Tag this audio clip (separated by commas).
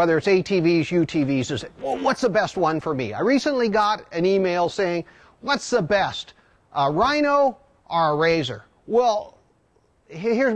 Speech